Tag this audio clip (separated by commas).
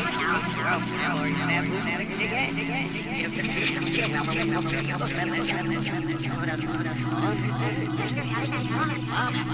Music